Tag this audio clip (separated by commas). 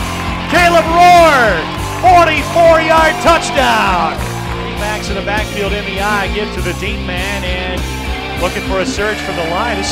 Speech, Music